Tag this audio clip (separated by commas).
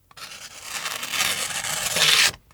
Tearing